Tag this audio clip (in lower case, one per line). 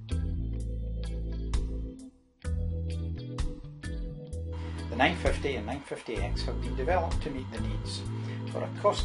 speech
music